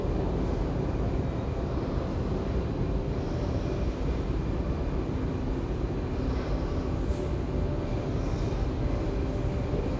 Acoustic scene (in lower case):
subway station